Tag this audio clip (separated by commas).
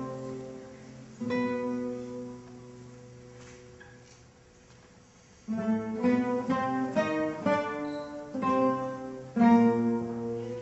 Music, Double bass, Guitar, Orchestra, Classical music